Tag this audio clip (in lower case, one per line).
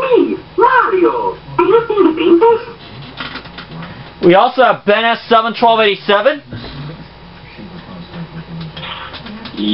speech